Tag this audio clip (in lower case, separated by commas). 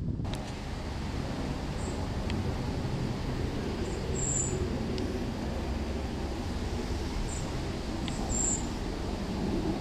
outside, rural or natural